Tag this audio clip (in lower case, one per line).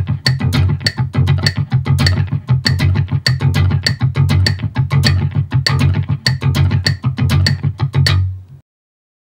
music